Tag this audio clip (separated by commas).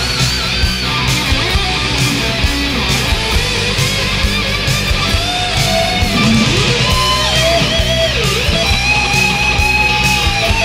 Heavy metal, Music